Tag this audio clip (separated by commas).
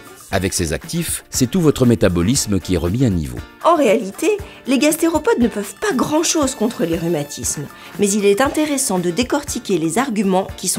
Music, Speech